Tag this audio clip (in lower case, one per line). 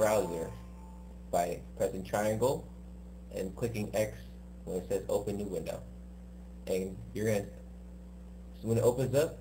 speech